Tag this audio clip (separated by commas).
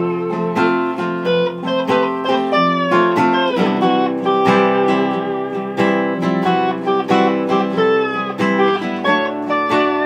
playing steel guitar